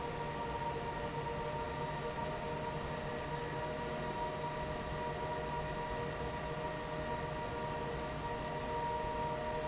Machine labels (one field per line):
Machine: fan